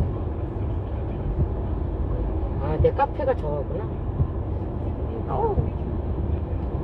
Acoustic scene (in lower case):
car